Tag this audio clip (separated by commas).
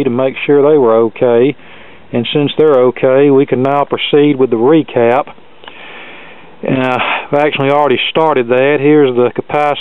Speech